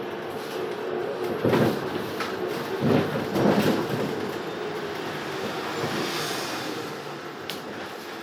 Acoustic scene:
bus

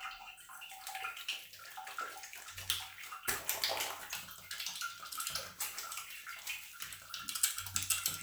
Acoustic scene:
restroom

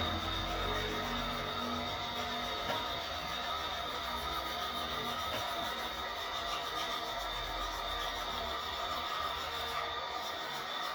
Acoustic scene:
restroom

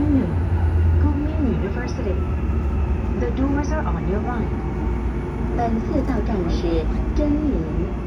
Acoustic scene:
subway train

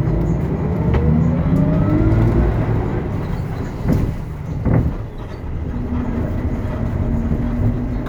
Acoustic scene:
bus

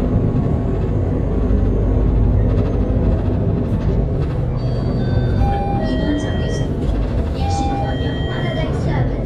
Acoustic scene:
bus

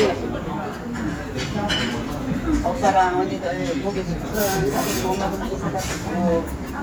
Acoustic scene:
restaurant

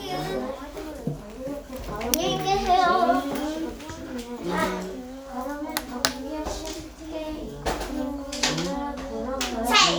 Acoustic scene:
crowded indoor space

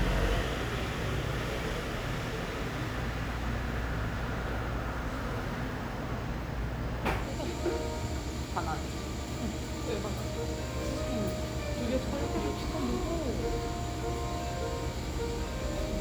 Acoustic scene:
cafe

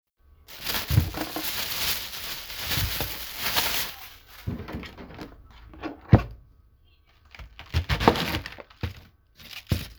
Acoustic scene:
kitchen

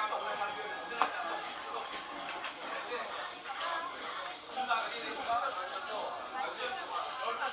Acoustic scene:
restaurant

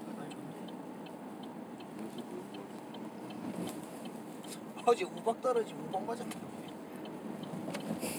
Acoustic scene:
car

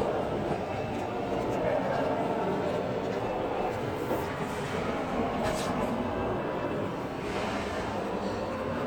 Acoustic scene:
crowded indoor space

